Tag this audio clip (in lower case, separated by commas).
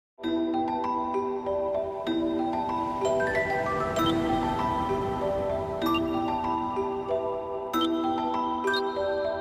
mallet percussion, xylophone, glockenspiel